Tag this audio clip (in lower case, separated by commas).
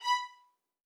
musical instrument, music, bowed string instrument